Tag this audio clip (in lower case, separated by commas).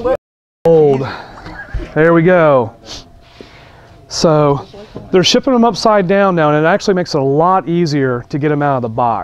speech